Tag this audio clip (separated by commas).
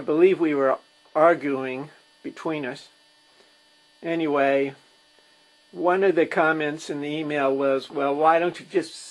Speech